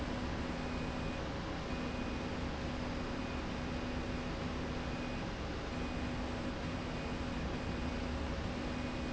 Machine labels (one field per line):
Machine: slide rail